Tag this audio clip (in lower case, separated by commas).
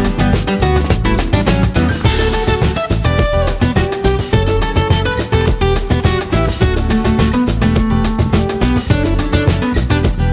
music